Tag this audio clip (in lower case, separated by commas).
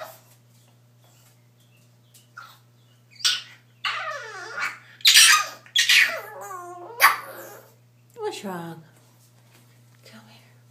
animal, speech